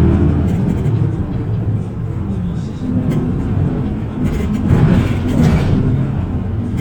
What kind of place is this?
bus